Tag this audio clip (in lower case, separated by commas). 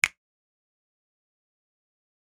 finger snapping, hands, percussion, music, musical instrument